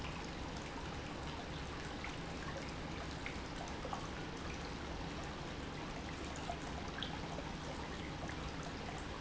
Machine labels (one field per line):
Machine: pump